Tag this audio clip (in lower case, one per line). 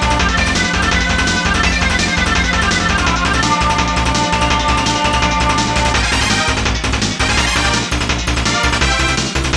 music